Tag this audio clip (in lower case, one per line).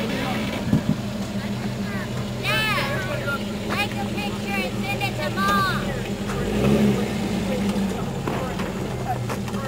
truck
speech
vehicle